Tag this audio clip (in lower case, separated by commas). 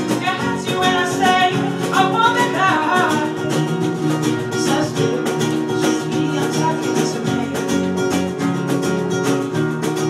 music